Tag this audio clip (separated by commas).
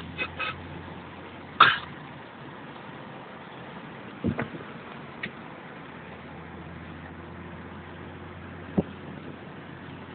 Car, Vehicle, Motor vehicle (road)